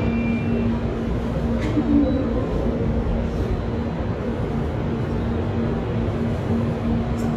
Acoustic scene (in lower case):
subway station